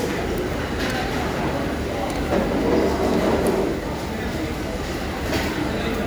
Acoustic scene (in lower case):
crowded indoor space